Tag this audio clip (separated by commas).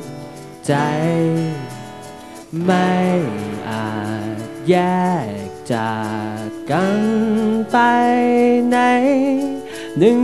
Music